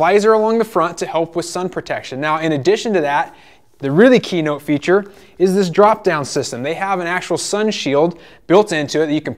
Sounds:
Speech

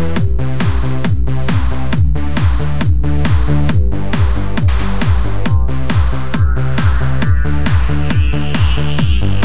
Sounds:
Music, Techno

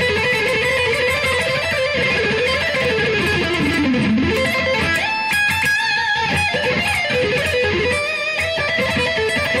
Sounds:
Tapping (guitar technique), Musical instrument, Music, Guitar, Heavy metal

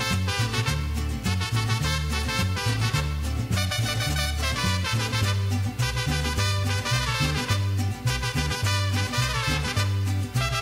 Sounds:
Music

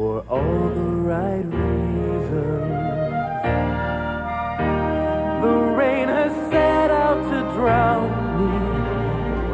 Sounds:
Music, Exciting music

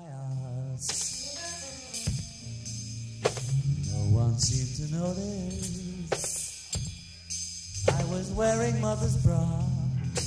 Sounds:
Vocal music, Singing, Music

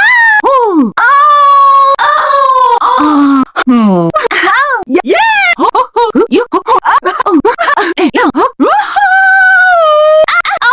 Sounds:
Screaming

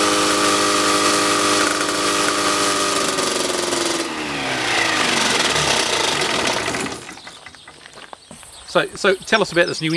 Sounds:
Speech, Engine

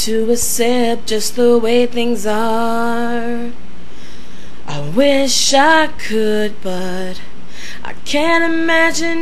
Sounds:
Female singing

